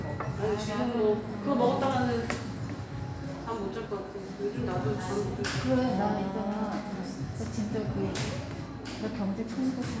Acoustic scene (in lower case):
cafe